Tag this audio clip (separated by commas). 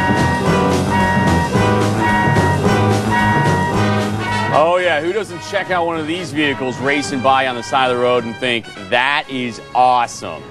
Music, Speech